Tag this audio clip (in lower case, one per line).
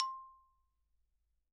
xylophone
music
musical instrument
mallet percussion
percussion